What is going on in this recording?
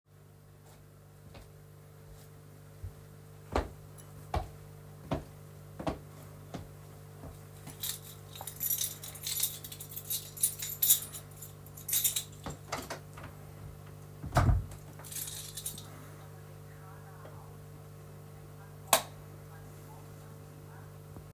Walking up to the bedroom door, taking out the key, unlocking and opening the door. The TV from the living room is now audible. Turning off the light.